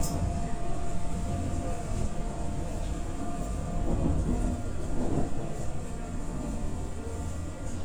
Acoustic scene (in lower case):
subway train